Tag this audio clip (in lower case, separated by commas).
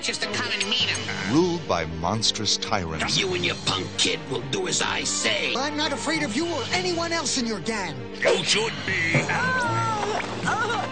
speech, music